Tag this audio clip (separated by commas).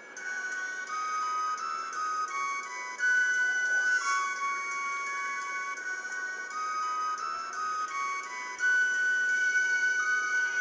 inside a small room, Music, Chime